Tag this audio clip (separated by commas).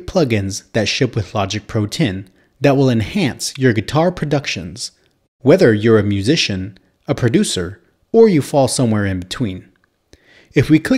Speech